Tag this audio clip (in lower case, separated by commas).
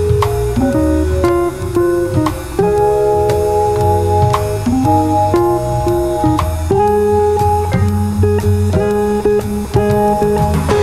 music, musical instrument